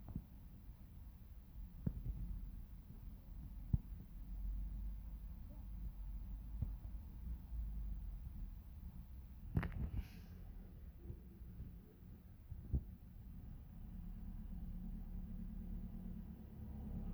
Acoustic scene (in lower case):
residential area